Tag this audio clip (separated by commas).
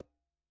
Music, Musical instrument, Percussion